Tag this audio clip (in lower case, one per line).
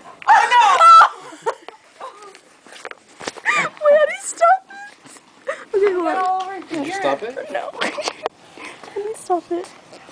speech